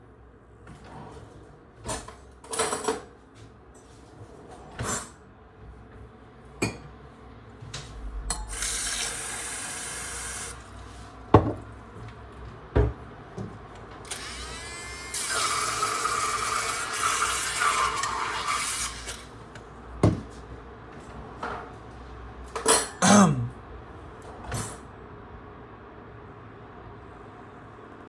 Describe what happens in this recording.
I opened the drawer, then closed it, took out a spoon, opened a cupboard and took out a cup. I filled the cup with water and then closed the cupboard. I then started making the coffee. I then opened the cupboard again, put back the spoon and closed it. In the end, I coughed.